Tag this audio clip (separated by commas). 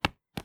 Walk